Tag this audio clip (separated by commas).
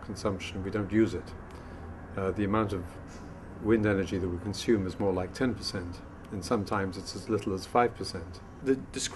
Speech